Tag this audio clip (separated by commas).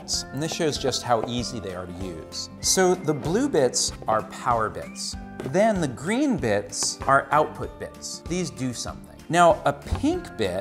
Speech, Music